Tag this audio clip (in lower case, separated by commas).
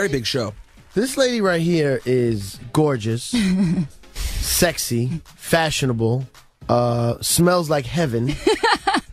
speech, music